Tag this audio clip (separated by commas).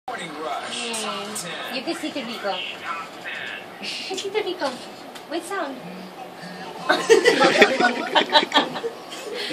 Speech